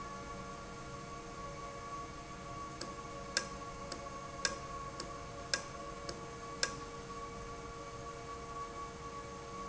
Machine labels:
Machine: valve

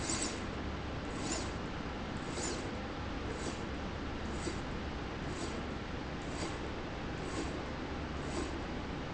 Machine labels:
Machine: slide rail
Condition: abnormal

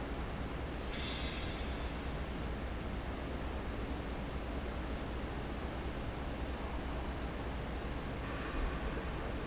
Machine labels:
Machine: fan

